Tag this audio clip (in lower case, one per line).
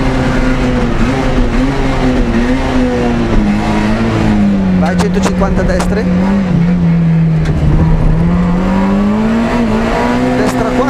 motor vehicle (road)
car
speech
vehicle